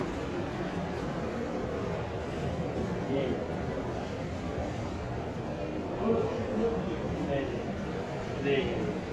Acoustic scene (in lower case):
crowded indoor space